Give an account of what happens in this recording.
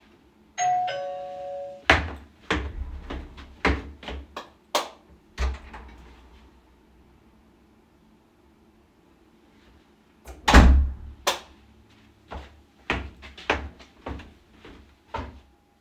Doorbell rings, I walk over to the door, switch the light on, open the door, wait a few seconds, close the door, turn off the light and walk away.